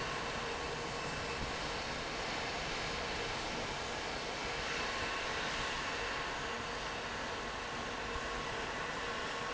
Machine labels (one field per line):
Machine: fan